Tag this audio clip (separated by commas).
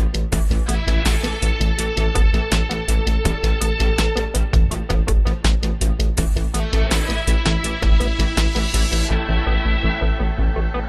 Music